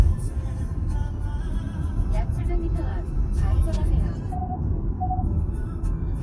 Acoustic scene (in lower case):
car